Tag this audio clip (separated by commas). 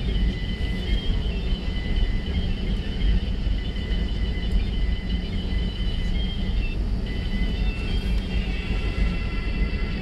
airplane, Vehicle